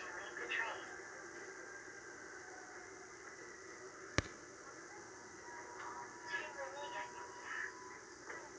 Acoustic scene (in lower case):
subway train